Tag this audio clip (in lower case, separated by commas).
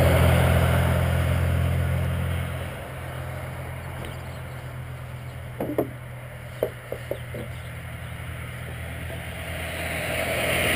car, vehicle, tools